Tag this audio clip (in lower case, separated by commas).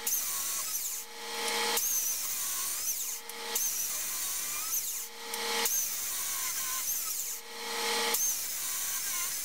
tools, chainsaw